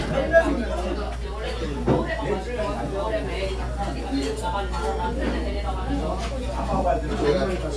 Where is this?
in a crowded indoor space